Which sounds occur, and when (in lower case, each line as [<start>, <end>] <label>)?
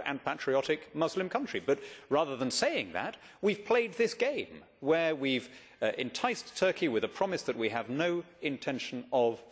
[0.00, 0.79] man speaking
[0.00, 9.51] background noise
[0.92, 1.72] man speaking
[1.70, 2.07] breathing
[2.07, 3.08] man speaking
[3.12, 3.41] breathing
[3.43, 4.44] man speaking
[4.79, 5.45] man speaking
[5.39, 5.78] breathing
[5.80, 8.15] man speaking
[8.39, 9.32] man speaking